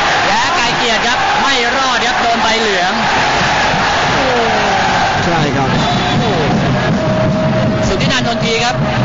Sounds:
speech

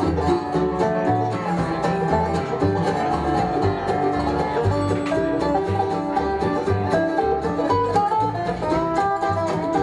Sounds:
music

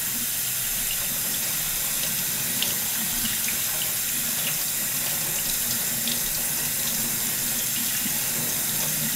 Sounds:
sink (filling or washing)
water
faucet

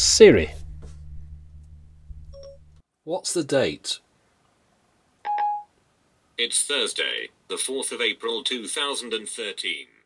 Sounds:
speech

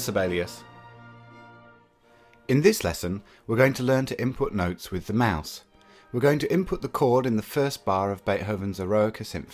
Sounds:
speech
music

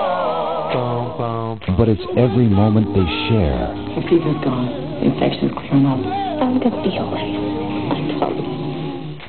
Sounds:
speech
music

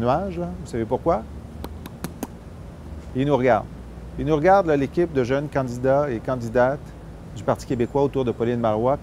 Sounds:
speech

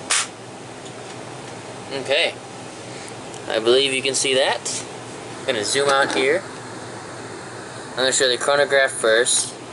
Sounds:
speech
mechanical fan
inside a small room

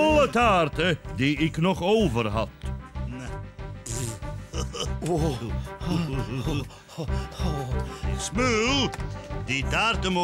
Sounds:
speech

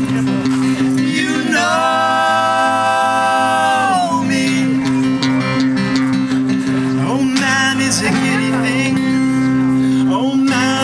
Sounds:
music

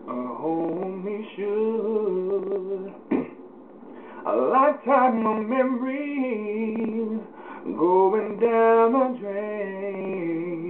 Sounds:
male singing

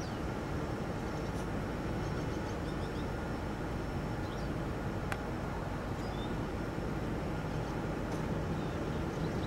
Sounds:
animal

